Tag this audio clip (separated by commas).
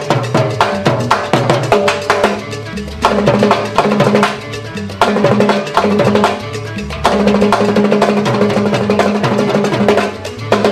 playing timbales